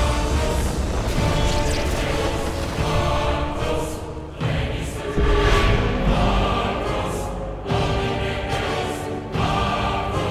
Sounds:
music

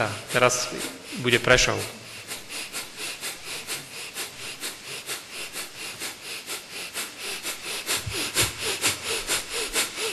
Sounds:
speech, breathing

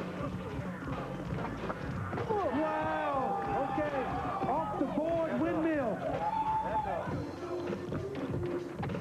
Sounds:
speech

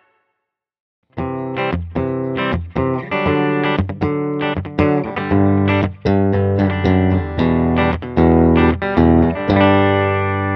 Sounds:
music, distortion

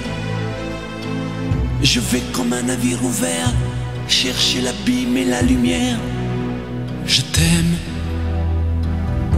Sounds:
music

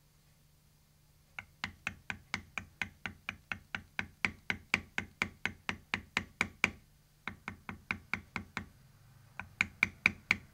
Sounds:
tools

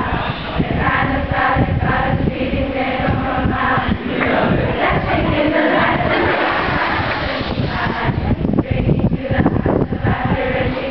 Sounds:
choir

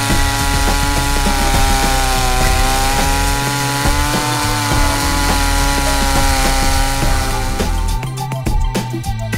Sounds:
music, chainsaw

